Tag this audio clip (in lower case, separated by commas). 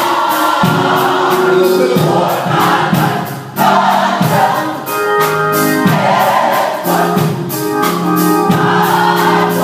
music, choir, male singing, female singing